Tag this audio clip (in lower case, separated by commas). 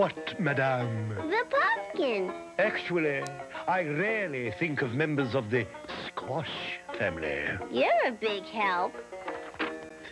speech, music